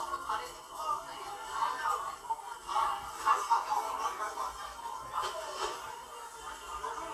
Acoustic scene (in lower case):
crowded indoor space